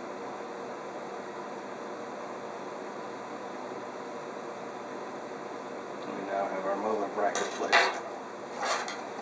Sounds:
Speech, inside a small room

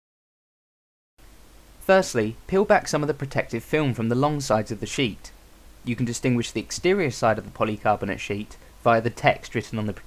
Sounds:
Speech

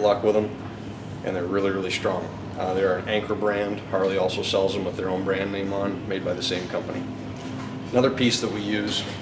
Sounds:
Speech

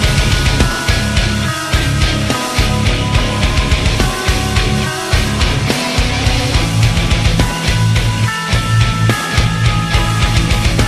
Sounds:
Music

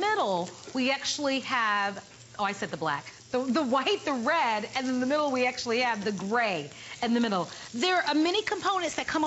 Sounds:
Speech

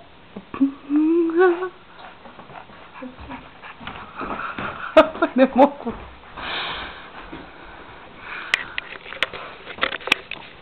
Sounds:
Speech

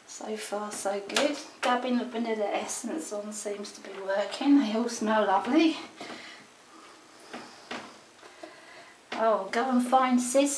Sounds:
Speech

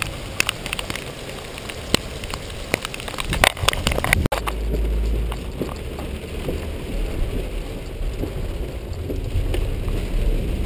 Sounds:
Run

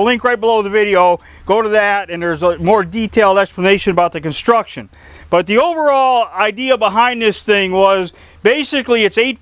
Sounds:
Speech

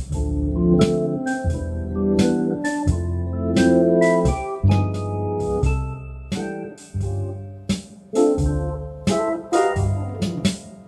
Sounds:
playing hammond organ

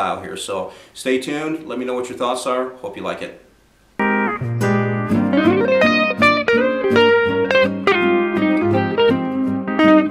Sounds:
Music, Speech

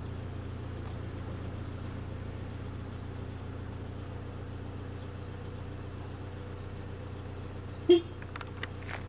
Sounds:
outside, rural or natural, Bird

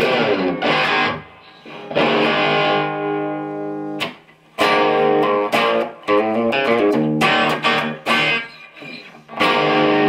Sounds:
Plucked string instrument, Musical instrument, Strum, Music, Guitar

